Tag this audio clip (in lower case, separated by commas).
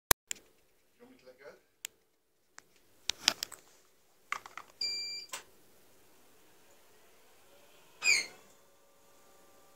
speech